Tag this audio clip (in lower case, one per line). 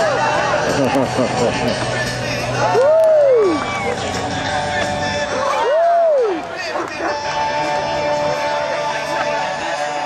music
bow-wow
domestic animals
dog